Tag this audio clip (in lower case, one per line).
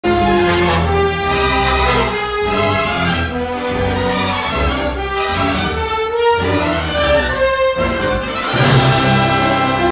music